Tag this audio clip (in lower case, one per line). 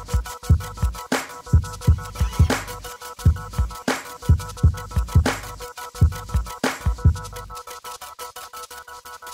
sampler